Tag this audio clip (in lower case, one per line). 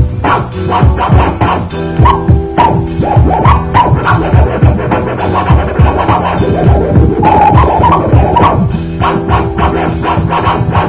disc scratching